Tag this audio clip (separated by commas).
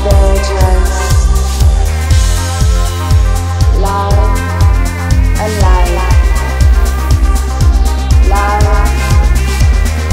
Punk rock, Music, Progressive rock